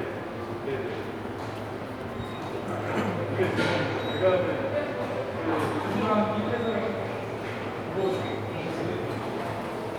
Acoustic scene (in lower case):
subway station